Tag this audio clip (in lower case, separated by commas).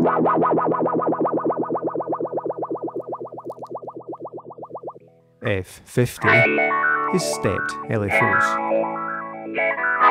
guitar, music, effects unit, speech